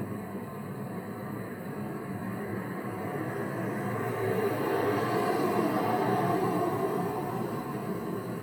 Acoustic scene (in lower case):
street